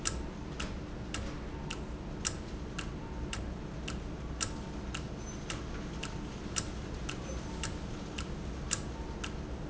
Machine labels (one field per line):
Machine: valve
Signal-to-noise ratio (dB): -6 dB